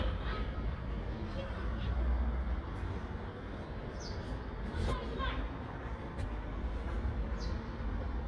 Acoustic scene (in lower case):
residential area